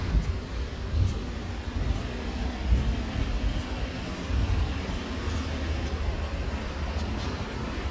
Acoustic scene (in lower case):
residential area